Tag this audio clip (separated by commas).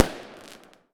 Fireworks, Explosion